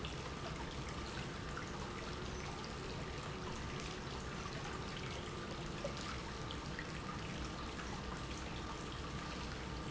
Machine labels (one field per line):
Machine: pump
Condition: normal